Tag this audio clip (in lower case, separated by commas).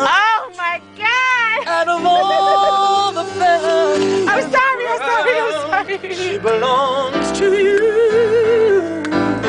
speech, male singing, music